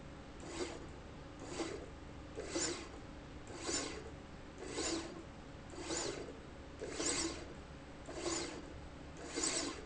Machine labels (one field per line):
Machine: slide rail